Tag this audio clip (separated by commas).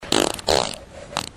Fart